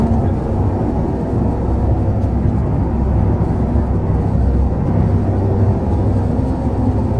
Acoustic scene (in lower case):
bus